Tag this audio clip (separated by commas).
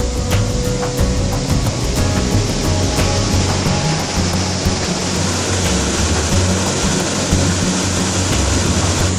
Waterfall, Music, waterfall burbling